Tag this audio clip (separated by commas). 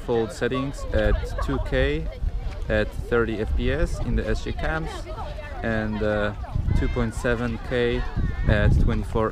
Speech, Hubbub